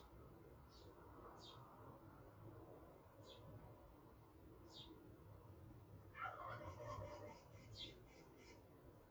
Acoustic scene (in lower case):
park